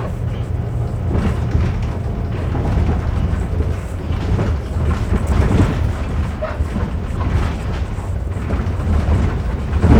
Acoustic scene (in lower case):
bus